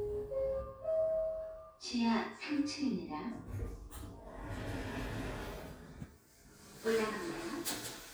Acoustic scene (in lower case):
elevator